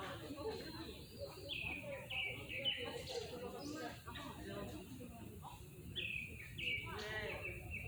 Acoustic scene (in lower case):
park